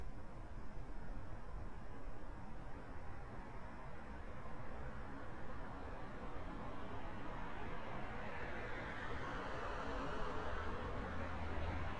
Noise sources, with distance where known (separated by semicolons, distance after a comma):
medium-sounding engine